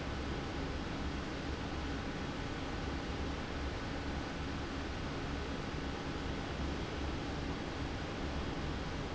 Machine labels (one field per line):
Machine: fan